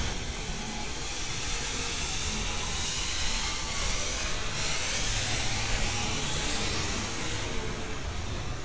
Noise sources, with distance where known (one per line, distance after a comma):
unidentified powered saw, near